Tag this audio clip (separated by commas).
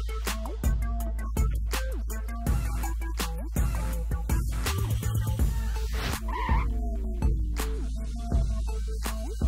Music, Speech